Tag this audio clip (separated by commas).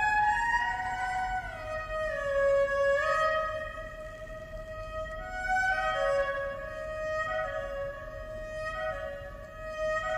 Music